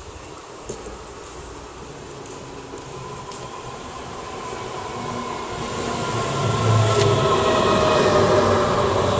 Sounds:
vehicle, railroad car, train, rail transport

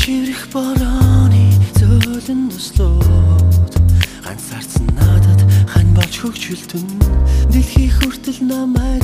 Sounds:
music, vocal music

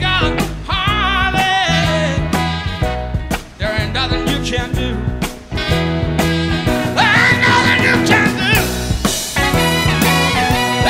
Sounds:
yell

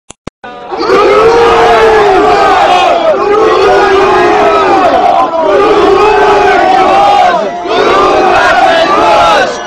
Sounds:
people crowd, crowd, battle cry

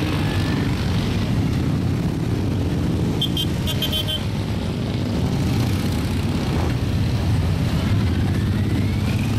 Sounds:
vehicle

